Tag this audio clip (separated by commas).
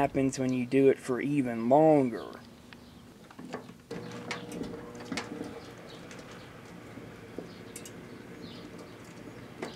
Speech